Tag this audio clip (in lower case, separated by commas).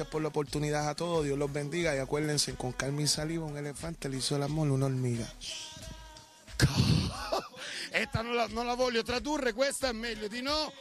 music, speech